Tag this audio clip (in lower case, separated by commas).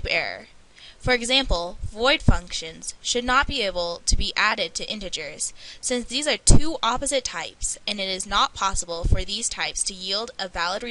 speech